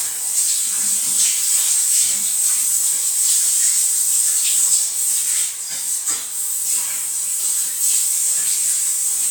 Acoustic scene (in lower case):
restroom